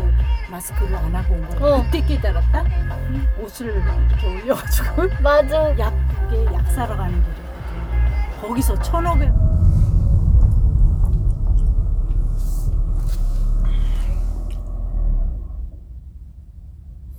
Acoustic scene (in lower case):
car